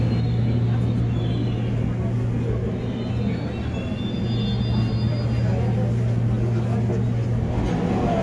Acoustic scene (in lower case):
subway train